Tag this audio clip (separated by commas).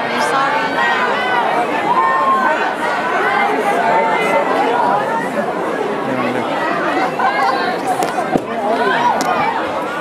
Speech